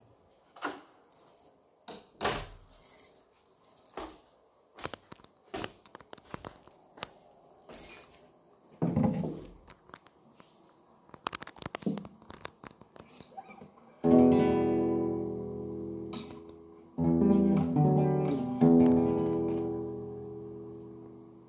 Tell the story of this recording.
I opened the main door, turned on the light, walked to my table put my keys on the table then picked up my guitar and played an E minor chord.